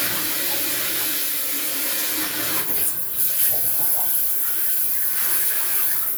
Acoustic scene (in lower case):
restroom